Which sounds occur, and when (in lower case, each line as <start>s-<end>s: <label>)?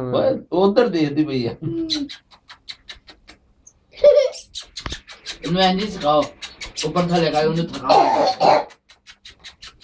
0.0s-0.3s: man speaking
0.5s-1.6s: man speaking
1.6s-2.2s: human voice
1.6s-3.3s: bird
3.7s-4.7s: laughter
4.5s-9.8s: bird
5.4s-6.2s: man speaking
6.9s-8.7s: man speaking
7.8s-8.8s: cough